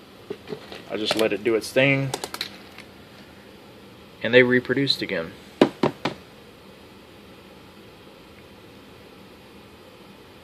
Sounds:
speech

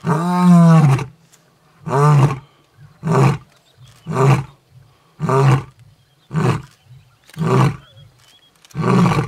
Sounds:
roaring cats, roar, lions growling

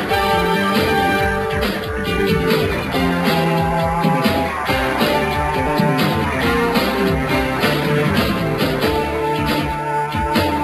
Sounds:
music, theme music

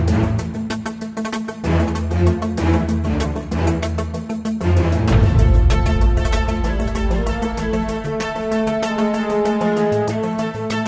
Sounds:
music

